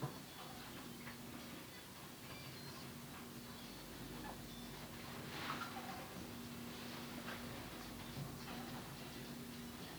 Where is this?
in an elevator